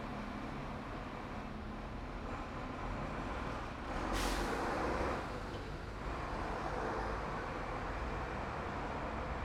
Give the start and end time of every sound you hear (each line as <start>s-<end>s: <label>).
0.0s-2.6s: bus engine idling
0.0s-9.4s: bus
2.6s-9.4s: bus engine accelerating
4.1s-4.6s: bus wheels rolling